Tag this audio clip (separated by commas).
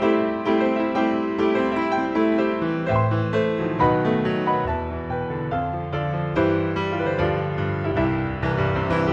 Classical music, Wedding music, Rhythm and blues, Music, Soul music